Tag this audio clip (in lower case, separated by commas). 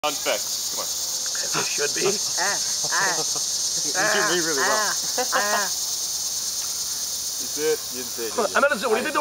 insect, cricket